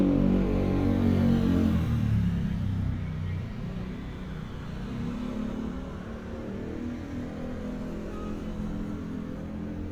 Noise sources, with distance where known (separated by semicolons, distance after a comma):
medium-sounding engine, near; car horn